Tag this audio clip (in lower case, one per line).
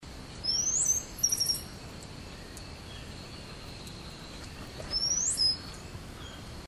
tweet
wild animals
bird
animal
bird call